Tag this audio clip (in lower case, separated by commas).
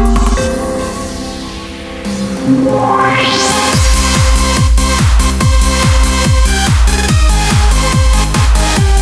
music, techno, electronic music